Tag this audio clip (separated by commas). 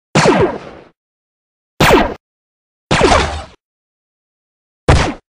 Sound effect